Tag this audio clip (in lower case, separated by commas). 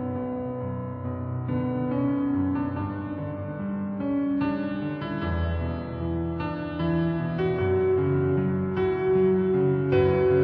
theme music, music